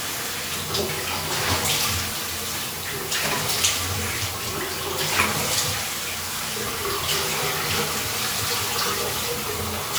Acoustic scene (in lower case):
restroom